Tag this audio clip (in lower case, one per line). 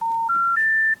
alarm
telephone